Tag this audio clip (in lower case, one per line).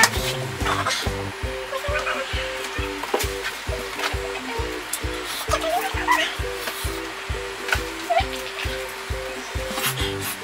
sizzle